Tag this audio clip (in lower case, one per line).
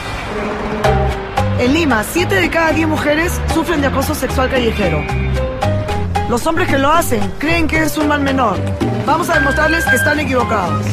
speech
music